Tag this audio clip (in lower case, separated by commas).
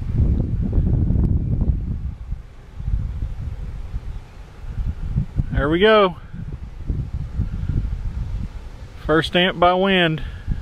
speech, wind